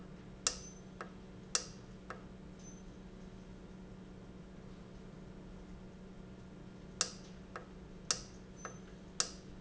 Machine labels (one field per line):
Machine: valve